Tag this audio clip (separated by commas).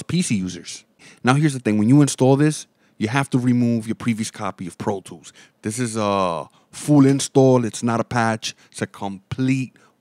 Speech